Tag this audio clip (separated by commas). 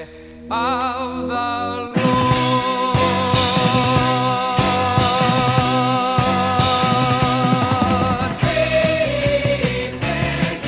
Music, Independent music